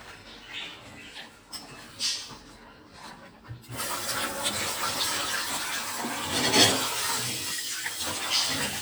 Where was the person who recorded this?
in a kitchen